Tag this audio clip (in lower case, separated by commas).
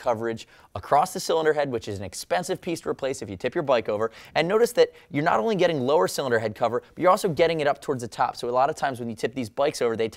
speech